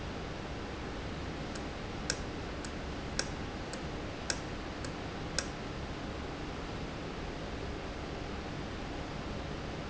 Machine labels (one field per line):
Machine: valve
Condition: normal